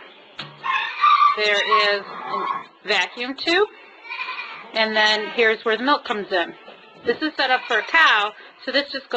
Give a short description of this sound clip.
A woman talks, and a sheep bleats